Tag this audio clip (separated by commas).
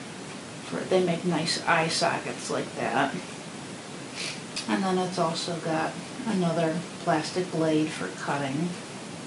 Speech